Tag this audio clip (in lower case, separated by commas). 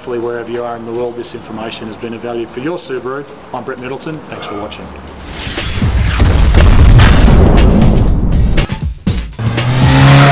vehicle, music, speech, car